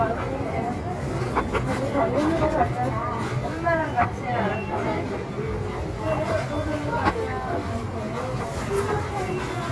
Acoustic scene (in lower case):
crowded indoor space